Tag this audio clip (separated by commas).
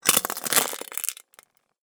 Crushing